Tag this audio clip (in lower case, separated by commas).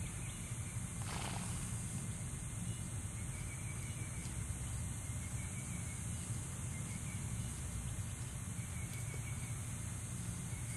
animal